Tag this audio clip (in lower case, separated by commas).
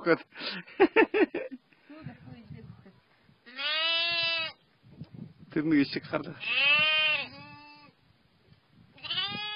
animal, sheep bleating, bleat, speech, livestock, goat